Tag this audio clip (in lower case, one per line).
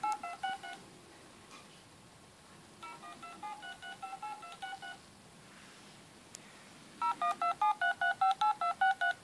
dtmf